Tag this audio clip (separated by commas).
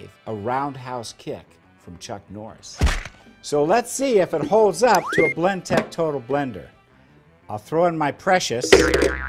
Music, Speech